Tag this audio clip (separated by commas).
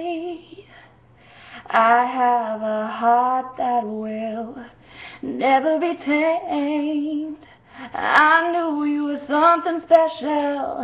Female singing